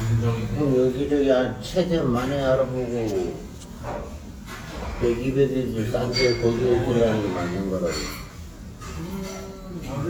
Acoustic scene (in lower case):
crowded indoor space